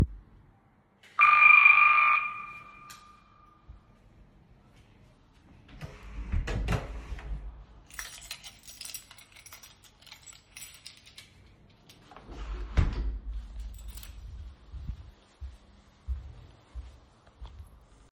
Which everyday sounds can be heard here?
bell ringing, door, keys, footsteps